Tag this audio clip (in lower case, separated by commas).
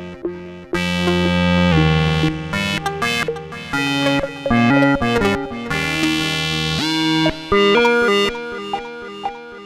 music, playing synthesizer, synthesizer